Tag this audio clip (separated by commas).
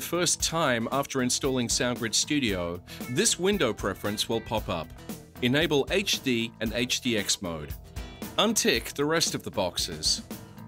Music, Speech